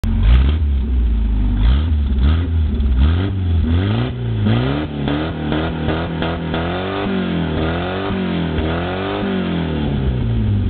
A running motor revs again and again